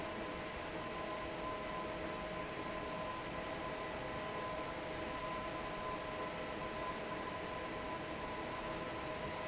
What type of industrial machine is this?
fan